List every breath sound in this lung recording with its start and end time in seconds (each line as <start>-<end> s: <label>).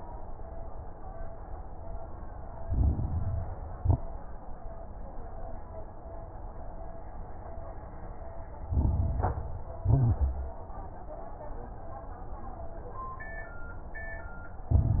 2.64-3.70 s: inhalation
2.64-3.70 s: crackles
3.76-4.05 s: exhalation
3.76-4.05 s: crackles
8.68-9.75 s: inhalation
8.68-9.75 s: crackles
9.82-10.57 s: exhalation
9.82-10.57 s: crackles
14.71-15.00 s: inhalation
14.71-15.00 s: crackles